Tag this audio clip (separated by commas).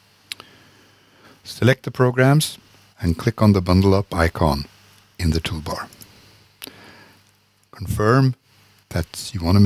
Speech